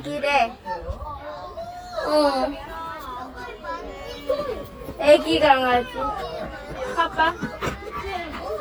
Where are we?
in a park